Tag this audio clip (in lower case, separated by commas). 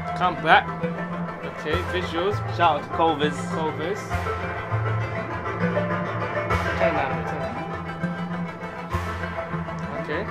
speech, music